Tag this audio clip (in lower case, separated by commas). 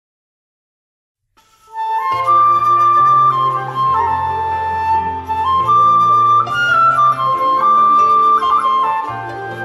musical instrument, music, wind instrument, classical music, playing flute, flute